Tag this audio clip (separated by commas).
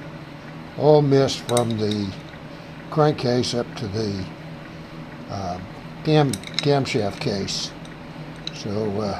Idling, Speech